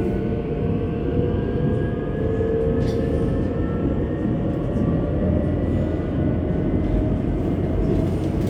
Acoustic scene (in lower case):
subway train